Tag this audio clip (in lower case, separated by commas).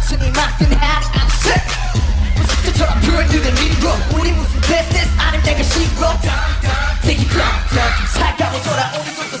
music, pop music